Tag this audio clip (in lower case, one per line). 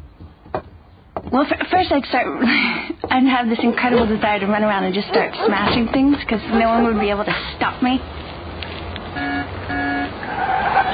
speech